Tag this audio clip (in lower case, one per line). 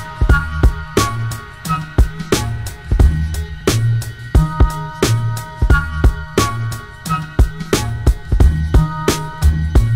music